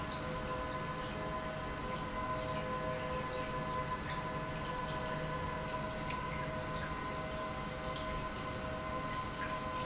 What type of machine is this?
pump